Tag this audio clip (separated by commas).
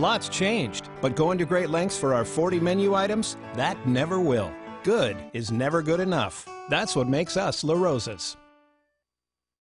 Speech, Music